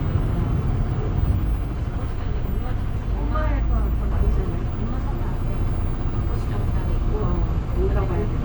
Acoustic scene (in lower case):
bus